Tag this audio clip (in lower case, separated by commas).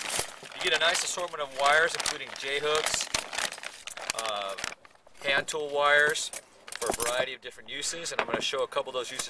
speech, tools